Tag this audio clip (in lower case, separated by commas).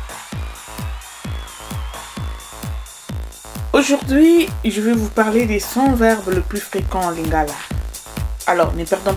music, speech